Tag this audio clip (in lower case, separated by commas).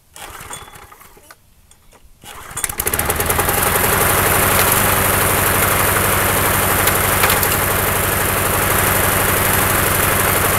idling, lawn mower, engine